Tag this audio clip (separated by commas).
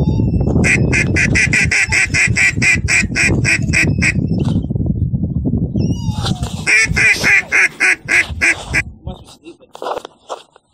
Quack, Duck, duck quacking, Animal, Speech